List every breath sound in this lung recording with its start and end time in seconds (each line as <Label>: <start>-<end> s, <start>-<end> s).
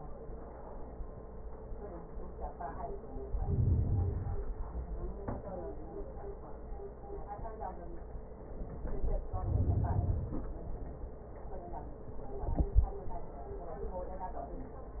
Inhalation: 3.23-4.62 s, 8.73-10.76 s